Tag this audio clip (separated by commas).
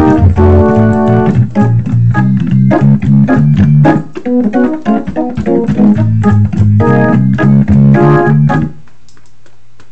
Hammond organ, Organ